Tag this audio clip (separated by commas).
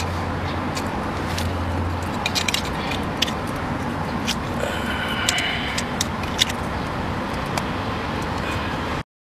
Wind noise (microphone)